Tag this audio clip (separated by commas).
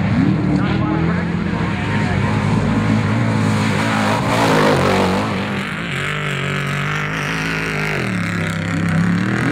Speech, Vehicle